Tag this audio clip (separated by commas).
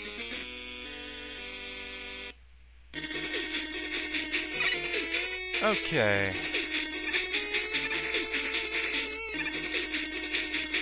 Speech, Music